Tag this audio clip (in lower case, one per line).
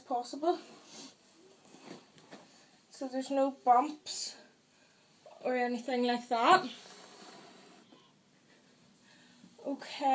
speech
inside a small room